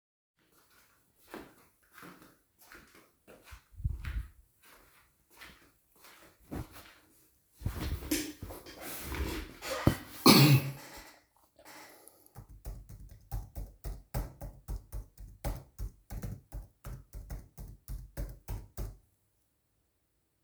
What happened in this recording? walking to the chair,sitting down with chair noise and coughing,typing on my laptop keyboard